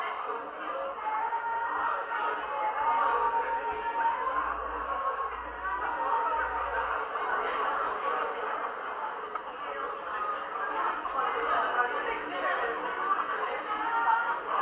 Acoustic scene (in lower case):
cafe